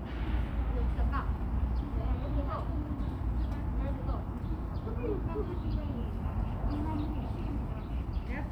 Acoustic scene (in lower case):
park